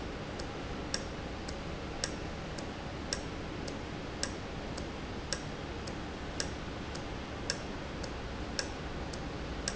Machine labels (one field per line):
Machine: valve